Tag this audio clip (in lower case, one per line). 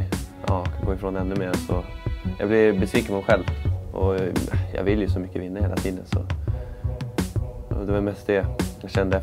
speech
music